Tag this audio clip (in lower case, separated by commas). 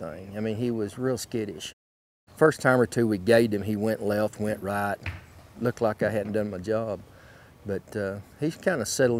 speech